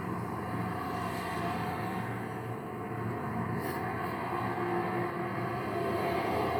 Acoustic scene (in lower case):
street